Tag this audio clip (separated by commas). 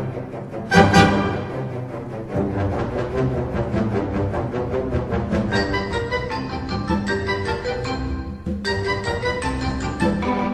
Music, Orchestra